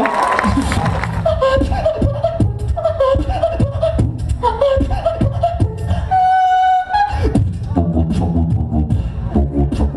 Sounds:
Beatboxing, Vocal music

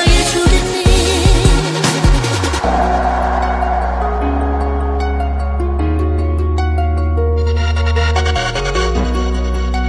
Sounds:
Music

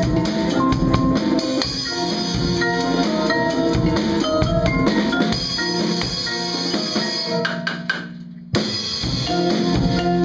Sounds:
Mallet percussion, Glockenspiel, xylophone

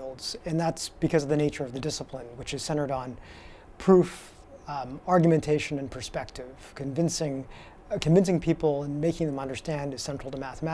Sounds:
Speech

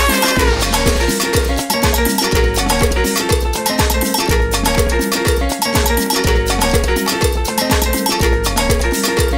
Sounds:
Music

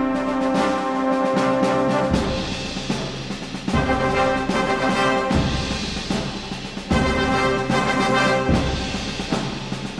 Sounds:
Music

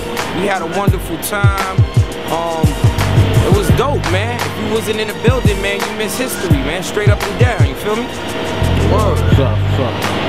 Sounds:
Speech, Music

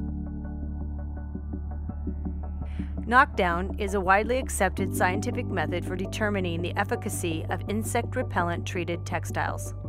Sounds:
Music, Speech

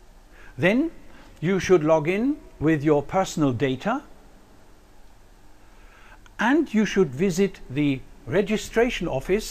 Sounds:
man speaking, Speech, Narration

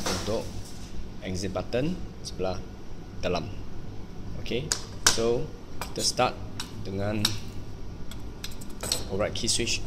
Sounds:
Speech

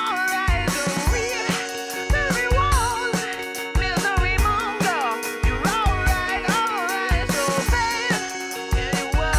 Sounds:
Background music, Music

